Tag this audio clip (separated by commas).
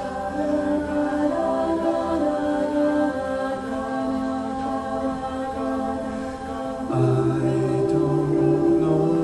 Singing, Music, Choir